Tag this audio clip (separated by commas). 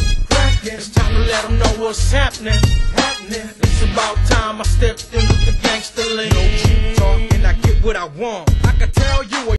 Music